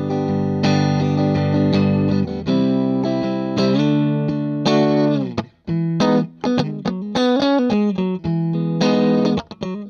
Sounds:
Blues, Music, Tender music

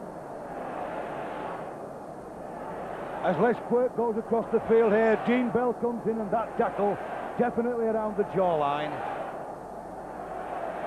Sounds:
Speech

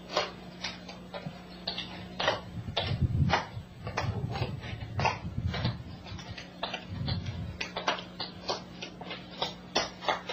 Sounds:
tap dancing

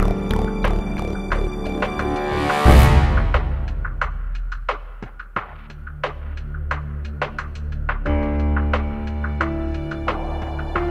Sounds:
Music

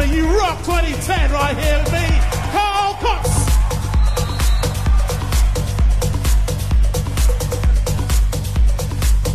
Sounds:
Exciting music, Soundtrack music, Speech, Music

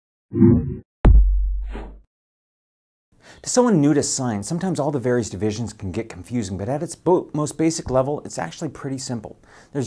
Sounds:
Speech, inside a small room

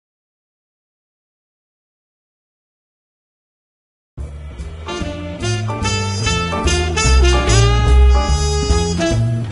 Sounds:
Swing music, Music

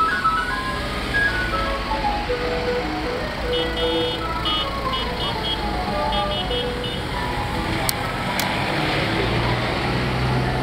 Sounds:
ice cream van

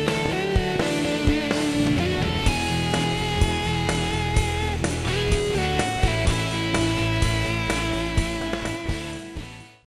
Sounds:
Music

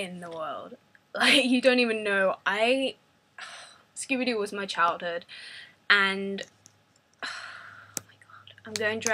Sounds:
Speech

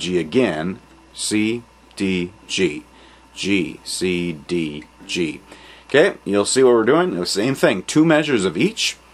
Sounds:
Speech

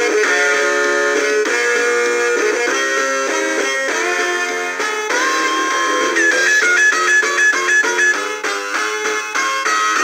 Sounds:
Music

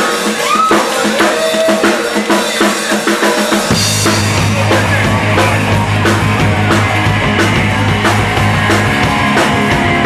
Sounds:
Rock and roll, Music

